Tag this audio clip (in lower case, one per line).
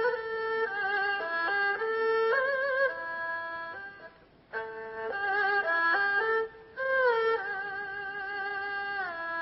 playing erhu